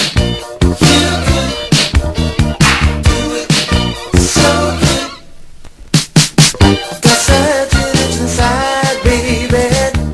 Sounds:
Music

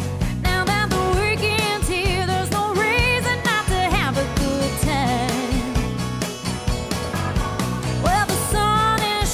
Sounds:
Music

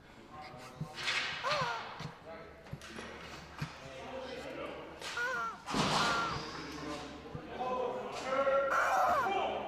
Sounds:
Speech

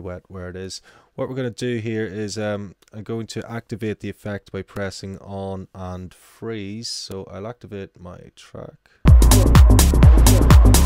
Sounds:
Music, Speech

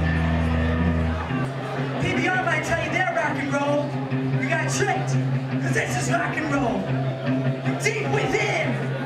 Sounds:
Music, Speech

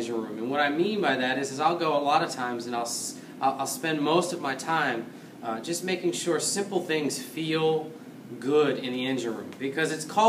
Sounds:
Speech

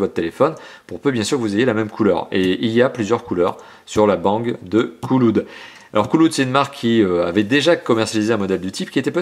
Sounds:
Speech

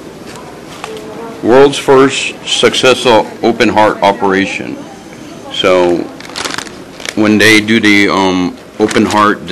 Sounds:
Speech

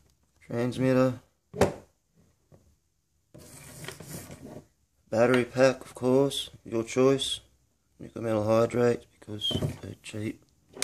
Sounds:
Speech

